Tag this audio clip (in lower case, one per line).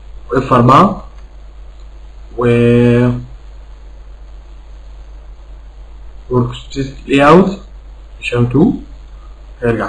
speech